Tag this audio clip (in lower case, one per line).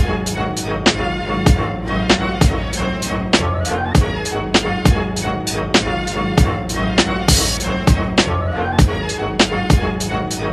theme music
music